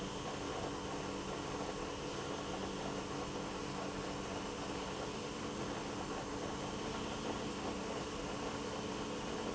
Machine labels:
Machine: pump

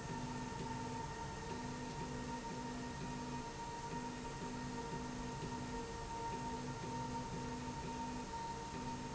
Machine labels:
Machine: slide rail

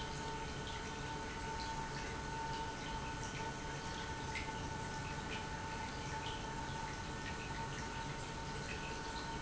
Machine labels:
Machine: pump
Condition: normal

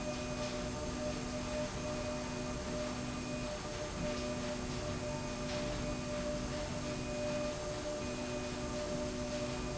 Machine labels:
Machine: slide rail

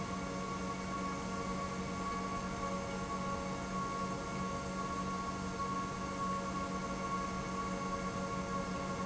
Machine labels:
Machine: pump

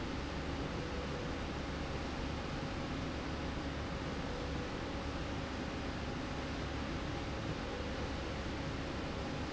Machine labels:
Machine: slide rail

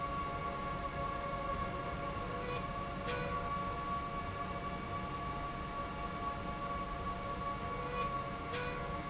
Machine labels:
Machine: slide rail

